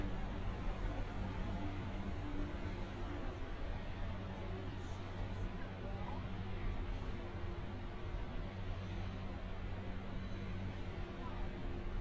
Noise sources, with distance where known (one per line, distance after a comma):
person or small group talking, far